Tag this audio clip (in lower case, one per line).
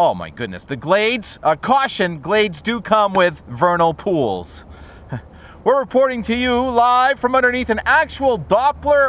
speech